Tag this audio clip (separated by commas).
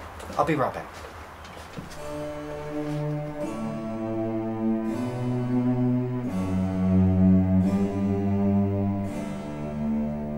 Speech, Music